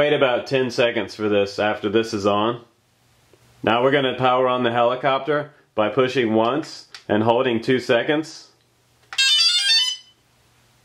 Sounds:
inside a small room, speech

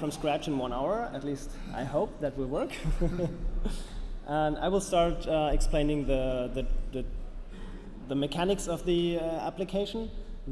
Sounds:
speech

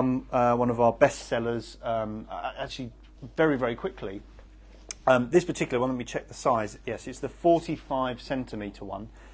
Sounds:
speech

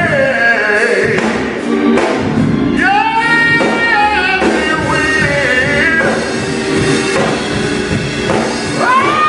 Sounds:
music, male singing

